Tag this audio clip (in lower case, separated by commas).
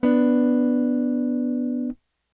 musical instrument, strum, guitar, plucked string instrument, electric guitar, music